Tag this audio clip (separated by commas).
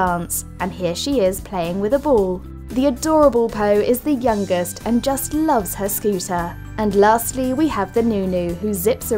Music, Speech